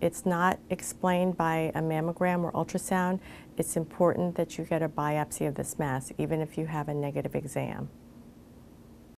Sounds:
speech

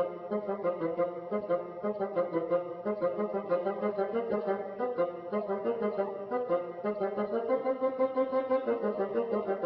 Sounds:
playing bassoon

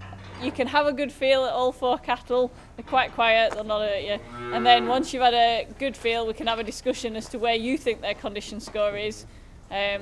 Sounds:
speech

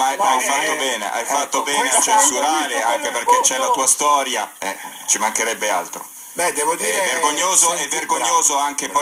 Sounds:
speech

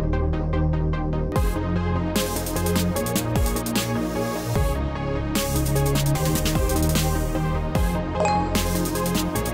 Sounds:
music

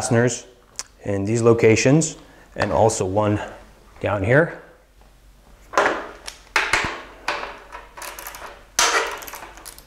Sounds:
speech

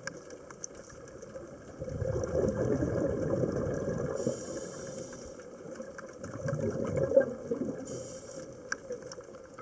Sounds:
scuba diving

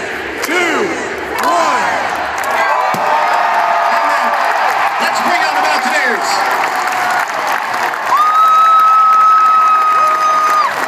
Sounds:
cheering

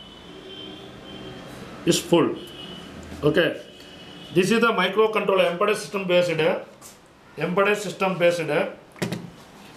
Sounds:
speech

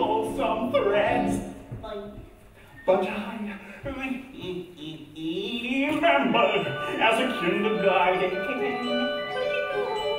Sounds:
speech
music

